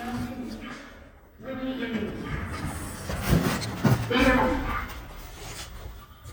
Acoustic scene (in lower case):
elevator